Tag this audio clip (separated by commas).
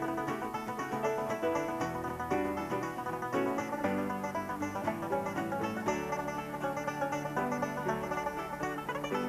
playing banjo